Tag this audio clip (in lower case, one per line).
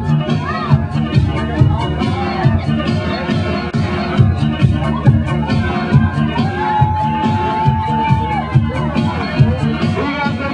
music